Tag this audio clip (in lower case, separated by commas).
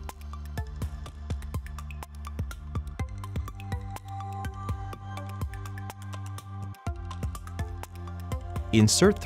speech, music